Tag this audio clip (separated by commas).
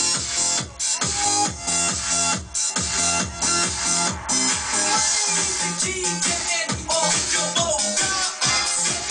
Music